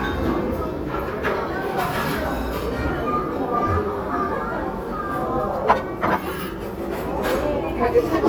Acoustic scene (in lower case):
restaurant